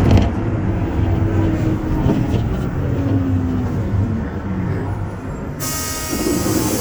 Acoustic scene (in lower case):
bus